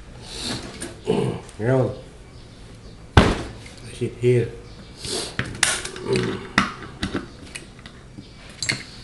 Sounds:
speech

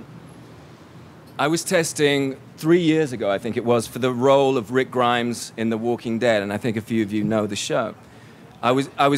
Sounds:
male speech
monologue
speech

